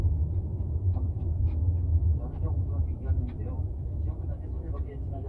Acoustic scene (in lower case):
car